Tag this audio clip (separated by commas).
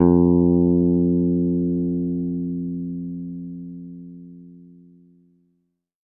Musical instrument, Plucked string instrument, Guitar, Bass guitar, Music